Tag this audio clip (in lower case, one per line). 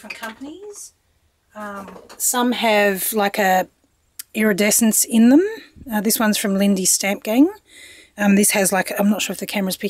speech